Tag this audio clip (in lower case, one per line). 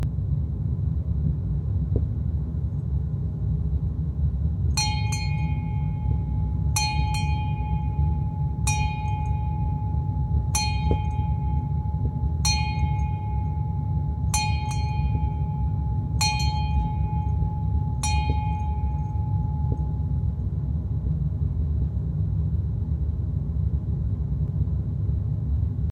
vehicle
boat